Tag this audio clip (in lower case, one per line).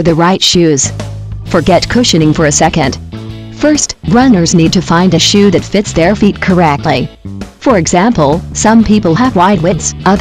speech
music